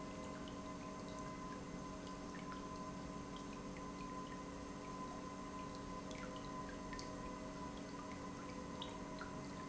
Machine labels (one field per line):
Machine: pump